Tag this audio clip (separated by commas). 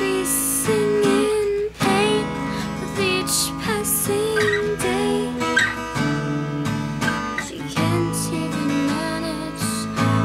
Child singing, Strum, Musical instrument, Guitar, Plucked string instrument, Music